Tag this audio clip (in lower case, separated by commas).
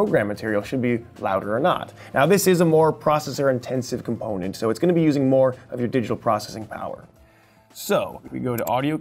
speech, music